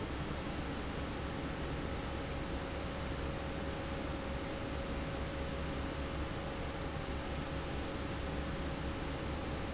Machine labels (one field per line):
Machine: fan